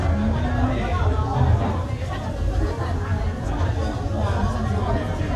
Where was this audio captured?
in a restaurant